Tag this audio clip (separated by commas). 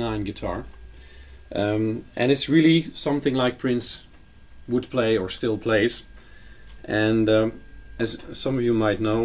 Speech